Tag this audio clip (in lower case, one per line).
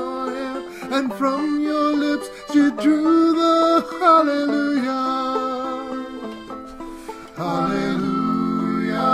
banjo
singing
plucked string instrument
inside a small room
musical instrument
music